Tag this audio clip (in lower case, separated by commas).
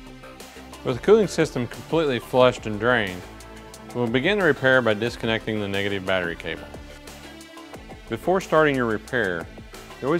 music, speech